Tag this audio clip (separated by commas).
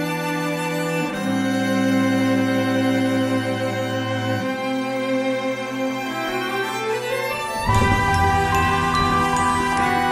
Background music